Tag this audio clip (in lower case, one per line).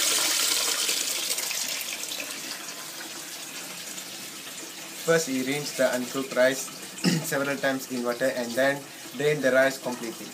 speech